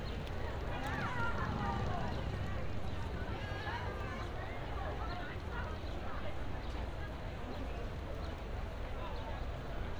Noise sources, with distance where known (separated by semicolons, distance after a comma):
unidentified human voice, far